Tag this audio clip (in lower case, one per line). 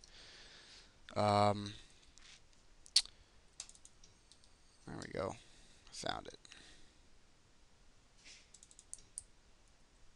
speech